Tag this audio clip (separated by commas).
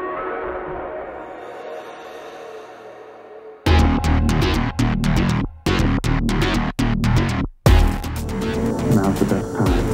Music, Speech